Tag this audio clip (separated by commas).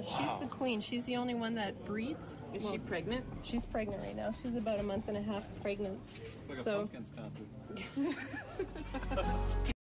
Speech